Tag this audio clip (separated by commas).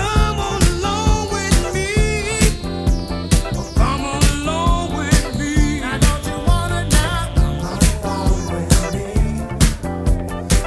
Soul music, Music